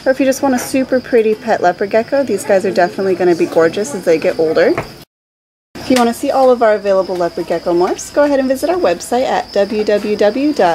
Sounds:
speech

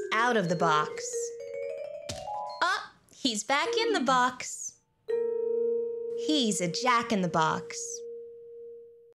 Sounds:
speech, music

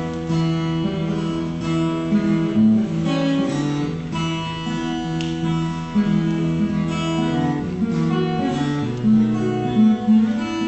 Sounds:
music, guitar, strum, plucked string instrument, acoustic guitar, musical instrument

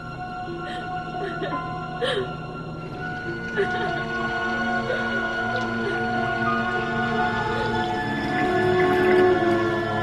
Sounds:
music

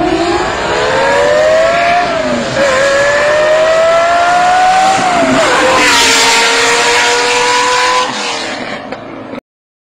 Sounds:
vehicle, car, revving

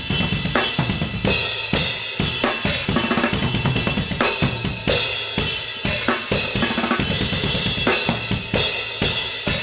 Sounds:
playing cymbal

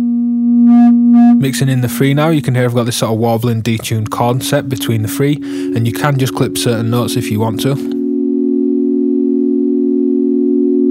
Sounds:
speech, synthesizer, music

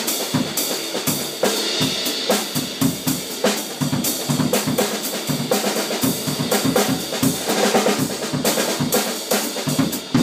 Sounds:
music

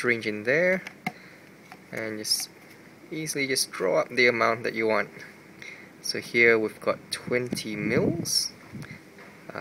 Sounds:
speech

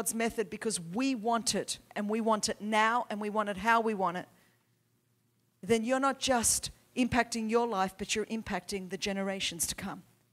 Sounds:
speech

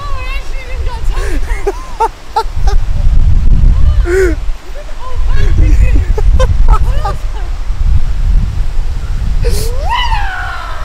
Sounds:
radio, speech

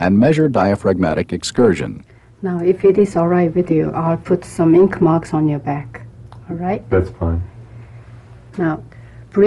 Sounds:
speech

